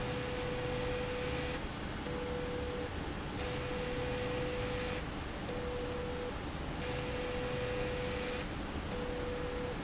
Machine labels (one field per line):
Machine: slide rail